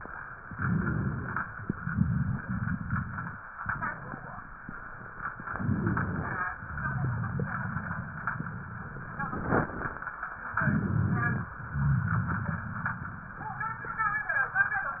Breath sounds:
0.46-1.47 s: inhalation
0.46-1.47 s: rhonchi
1.58-3.37 s: exhalation
1.58-3.37 s: rhonchi
5.44-6.50 s: inhalation
5.44-6.50 s: rhonchi
10.55-11.56 s: inhalation
10.55-11.56 s: rhonchi

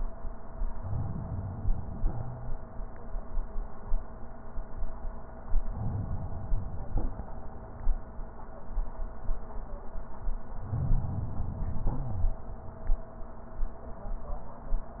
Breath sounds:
0.76-2.12 s: inhalation
2.12-2.54 s: wheeze
5.67-7.03 s: inhalation
10.59-11.95 s: inhalation
12.01-12.43 s: wheeze

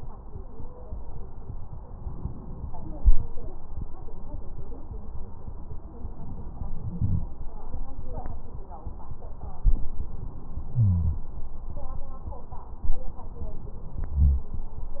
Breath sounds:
0.38-1.29 s: stridor
2.03-3.31 s: inhalation
6.09-7.30 s: inhalation
10.75-11.24 s: wheeze
14.09-14.49 s: wheeze

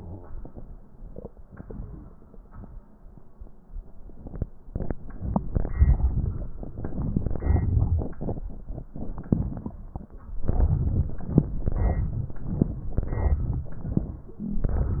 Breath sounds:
10.46-11.16 s: inhalation
11.65-12.36 s: inhalation
12.99-13.70 s: inhalation

